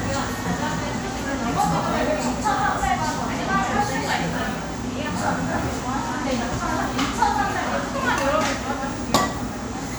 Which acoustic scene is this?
crowded indoor space